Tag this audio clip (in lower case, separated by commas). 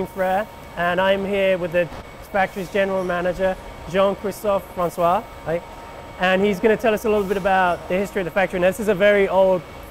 speech